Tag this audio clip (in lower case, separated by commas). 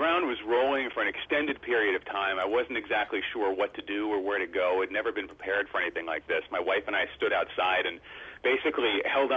speech